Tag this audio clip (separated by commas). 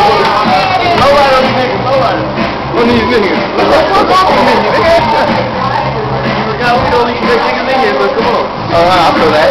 Speech, Music